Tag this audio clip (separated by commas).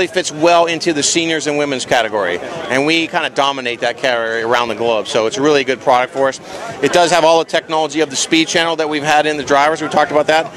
Speech